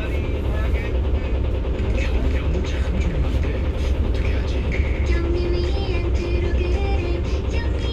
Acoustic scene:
bus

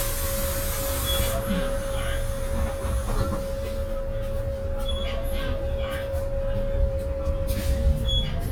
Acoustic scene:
bus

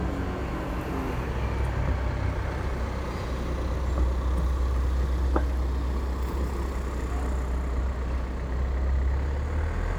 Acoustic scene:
street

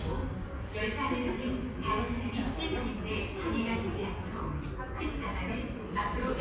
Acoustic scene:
subway station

